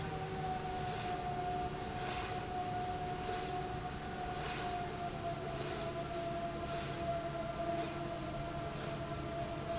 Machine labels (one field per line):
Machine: slide rail